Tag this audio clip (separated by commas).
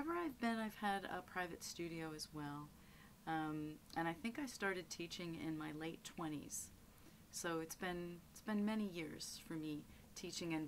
Speech